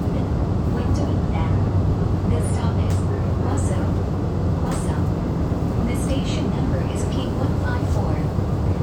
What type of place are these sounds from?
subway train